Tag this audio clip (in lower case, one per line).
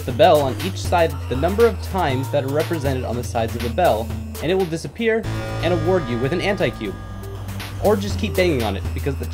speech
music